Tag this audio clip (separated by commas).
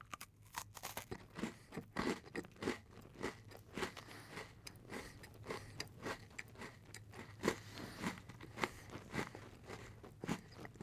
Chewing